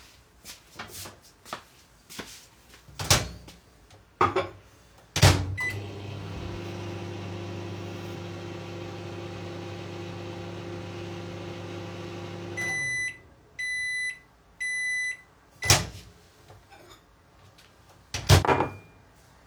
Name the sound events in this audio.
footsteps, microwave, cutlery and dishes